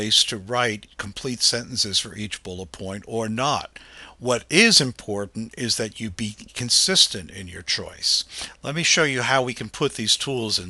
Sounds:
speech

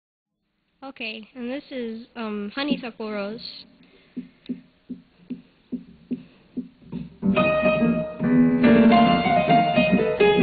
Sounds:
electronic organ, musical instrument, jazz, piano

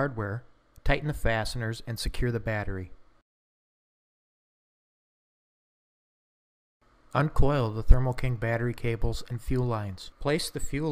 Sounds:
speech

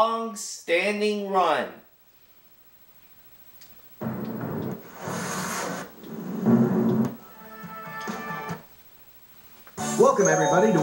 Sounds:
speech, music

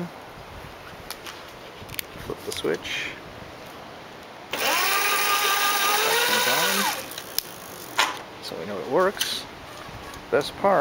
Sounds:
speech, bicycle, vehicle

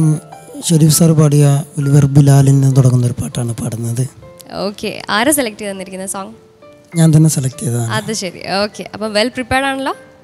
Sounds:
speech, music

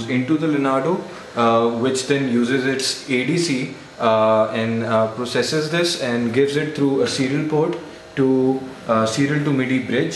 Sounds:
speech

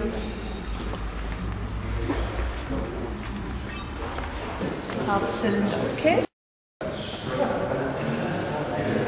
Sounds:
inside a large room or hall, speech

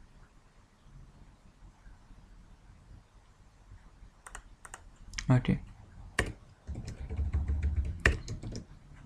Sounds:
speech, clicking

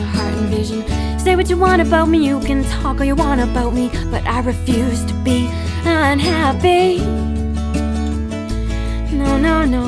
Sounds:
music

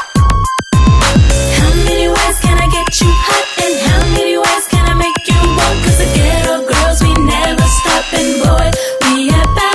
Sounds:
pop music, music

